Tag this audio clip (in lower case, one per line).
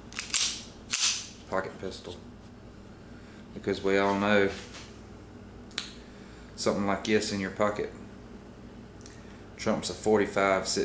inside a small room
speech